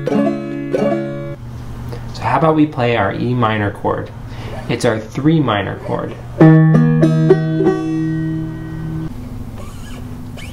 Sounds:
Plucked string instrument, Speech, Music, Musical instrument, inside a small room, Banjo

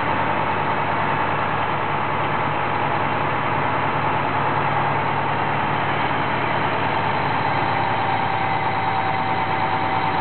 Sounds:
Vehicle, Truck

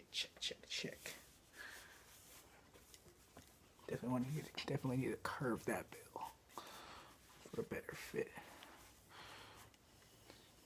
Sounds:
Speech, inside a small room

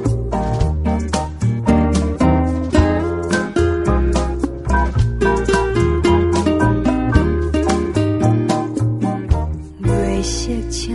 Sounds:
Music

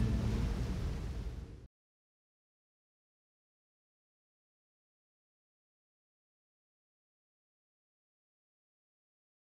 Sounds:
surf, Ocean

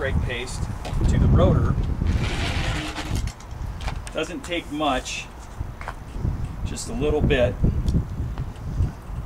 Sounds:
Speech

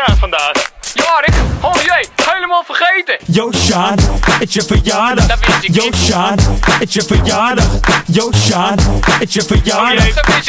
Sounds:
Music

